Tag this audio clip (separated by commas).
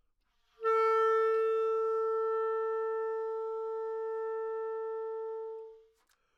Musical instrument, woodwind instrument, Music